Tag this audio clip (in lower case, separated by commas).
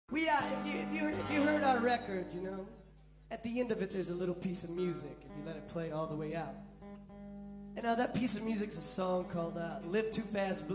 music, speech, inside a large room or hall